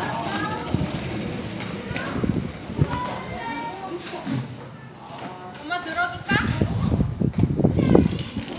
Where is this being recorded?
in a park